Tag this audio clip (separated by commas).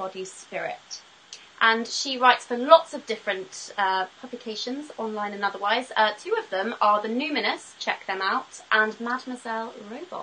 Speech